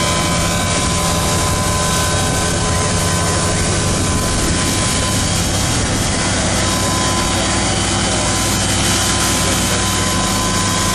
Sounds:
speech

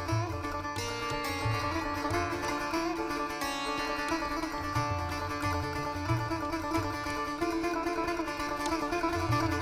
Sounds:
music, sitar

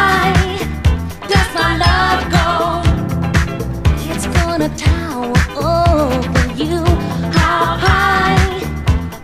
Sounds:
funk, music

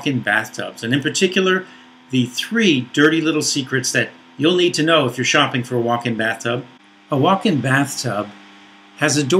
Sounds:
speech

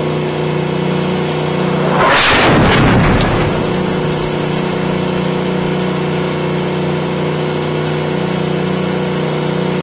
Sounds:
outside, rural or natural, vehicle, explosion

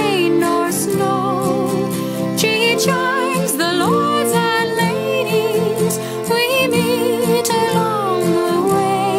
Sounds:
musical instrument, music

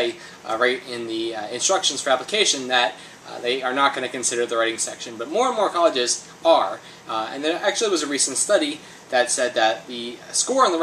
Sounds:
speech

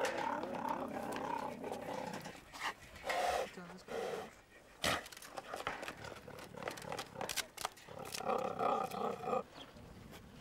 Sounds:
cheetah chirrup

